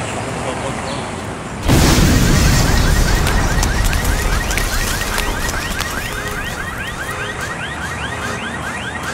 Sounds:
explosion

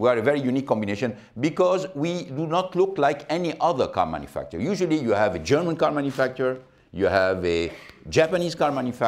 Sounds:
speech

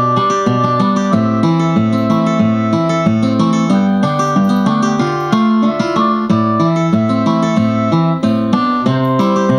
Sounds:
music

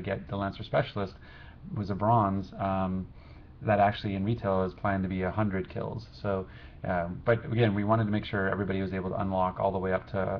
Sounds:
speech

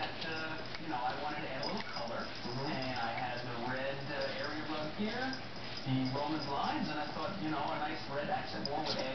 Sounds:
speech
animal
domestic animals

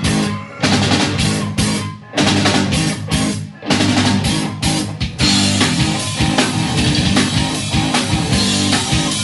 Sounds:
exciting music
punk rock
music
heavy metal
rock and roll

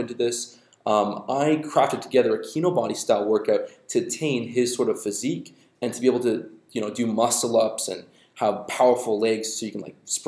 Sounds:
speech

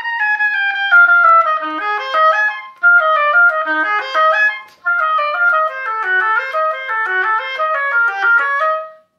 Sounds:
playing oboe

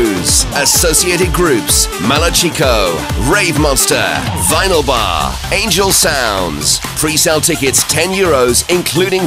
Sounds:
background music
music
speech

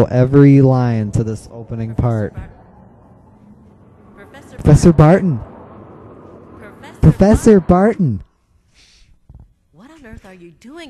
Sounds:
speech

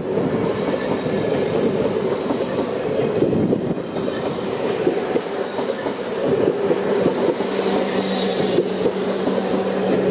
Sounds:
rail transport
train wagon
train
outside, rural or natural
vehicle

